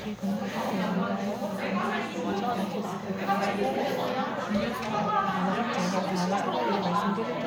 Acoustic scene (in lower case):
crowded indoor space